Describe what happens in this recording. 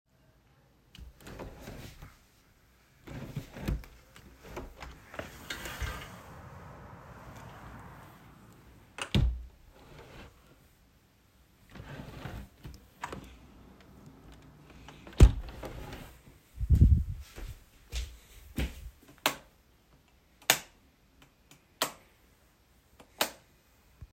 I closed my window. Then I stepped ot the ligh switch and turned it off because I went to bed.